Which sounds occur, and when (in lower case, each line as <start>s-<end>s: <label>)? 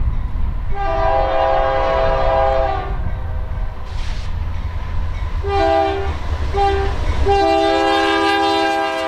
0.0s-9.0s: train
3.0s-9.0s: clickety-clack
3.8s-4.3s: generic impact sounds
7.2s-9.0s: train horn